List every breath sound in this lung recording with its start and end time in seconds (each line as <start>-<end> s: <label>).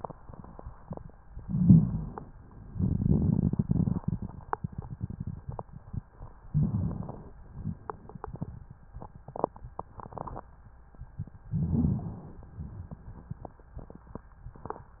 1.33-2.33 s: inhalation
1.46-2.13 s: wheeze
6.48-7.35 s: inhalation
6.50-7.03 s: rhonchi
11.48-12.20 s: rhonchi
11.54-12.53 s: inhalation